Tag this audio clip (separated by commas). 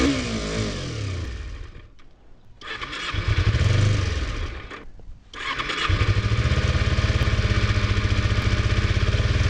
Vehicle, driving motorcycle, Motorcycle